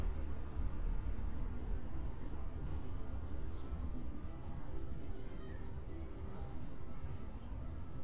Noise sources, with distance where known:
music from an unclear source, far

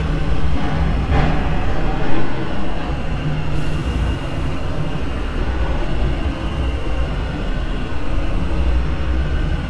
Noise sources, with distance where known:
unidentified impact machinery, near

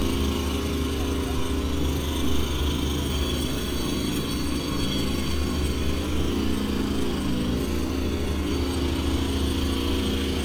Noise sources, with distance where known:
jackhammer, near

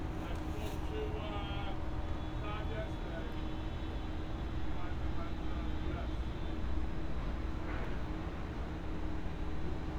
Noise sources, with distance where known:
engine of unclear size; non-machinery impact; person or small group talking, near

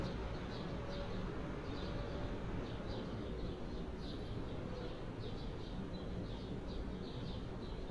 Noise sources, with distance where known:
background noise

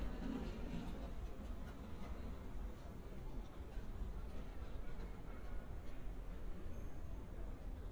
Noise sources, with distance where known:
background noise

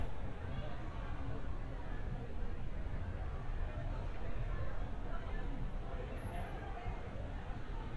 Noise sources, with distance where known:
unidentified human voice, far

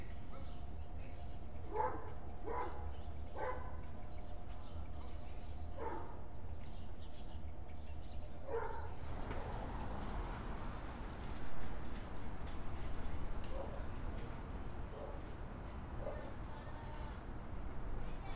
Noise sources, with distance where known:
unidentified human voice; dog barking or whining, far

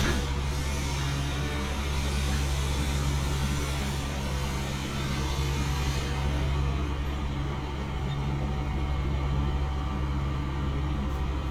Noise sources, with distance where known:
engine of unclear size, far

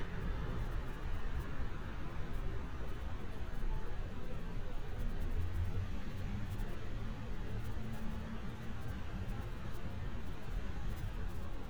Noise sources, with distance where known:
background noise

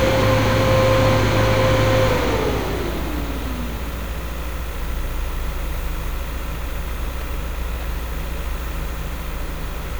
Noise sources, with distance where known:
engine of unclear size, near

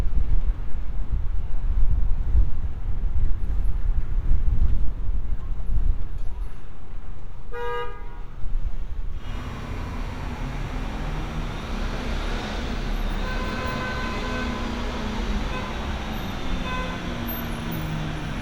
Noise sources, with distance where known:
car horn

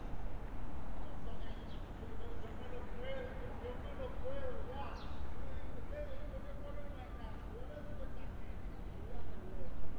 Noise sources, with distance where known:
person or small group shouting, far

